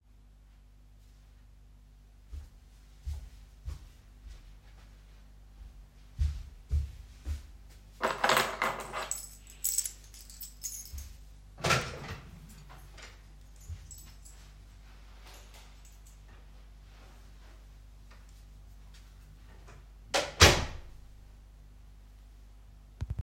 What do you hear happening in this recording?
I walked toward the door, grabbed my keys, opened the door, left the room and closed the door.